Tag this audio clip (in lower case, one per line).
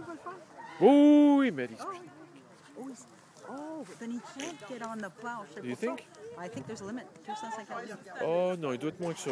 speech
vehicle